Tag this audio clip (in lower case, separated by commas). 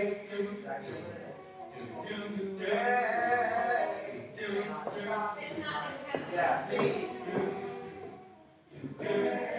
male singing, speech